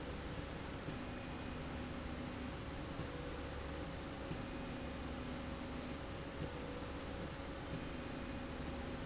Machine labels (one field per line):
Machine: slide rail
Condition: normal